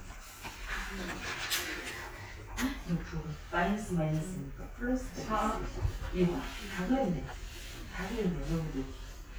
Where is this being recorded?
in a crowded indoor space